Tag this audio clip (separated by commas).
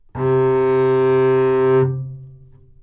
Musical instrument, Music, Bowed string instrument